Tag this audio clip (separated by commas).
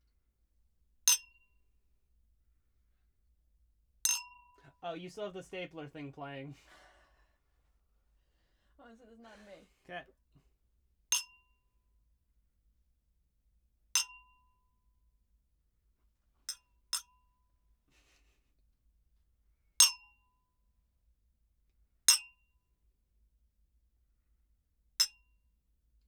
Chink, Glass